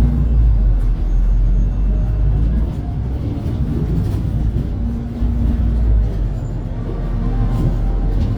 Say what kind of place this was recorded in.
bus